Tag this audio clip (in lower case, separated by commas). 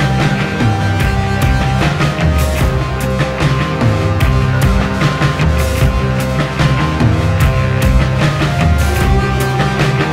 theme music, dance music, rhythm and blues, music, jazz, independent music